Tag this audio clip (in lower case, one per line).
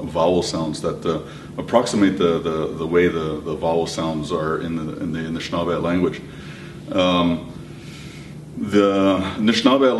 speech